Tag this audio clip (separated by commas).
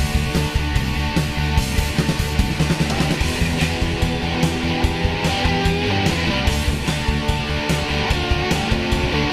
Music